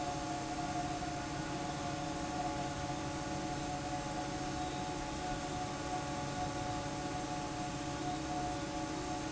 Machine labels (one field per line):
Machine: fan